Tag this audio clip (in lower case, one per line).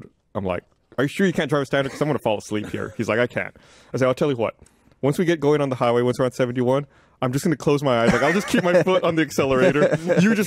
speech